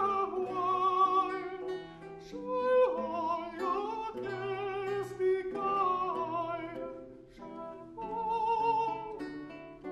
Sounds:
Music

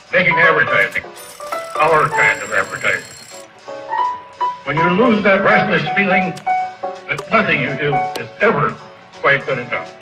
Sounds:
Speech, Music, Narration, man speaking

